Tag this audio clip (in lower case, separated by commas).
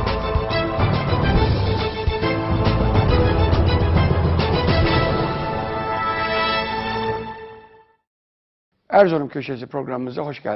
musical instrument, music, violin, speech